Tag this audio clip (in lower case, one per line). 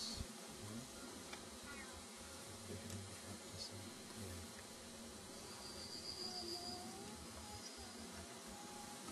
speech